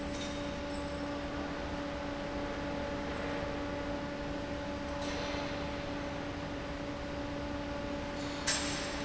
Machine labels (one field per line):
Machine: fan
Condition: abnormal